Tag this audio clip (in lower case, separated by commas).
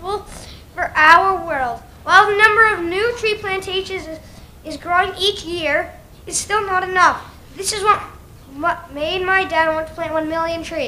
monologue, child speech, speech